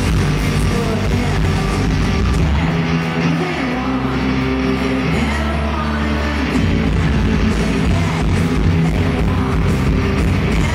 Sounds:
singing, music, pop music

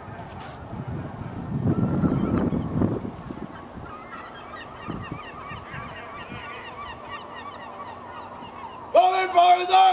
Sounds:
goose, speech

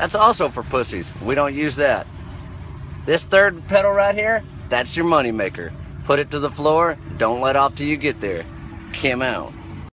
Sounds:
truck, vehicle, speech

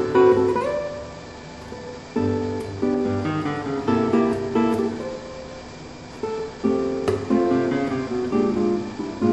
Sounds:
acoustic guitar, plucked string instrument, strum, music, musical instrument, guitar

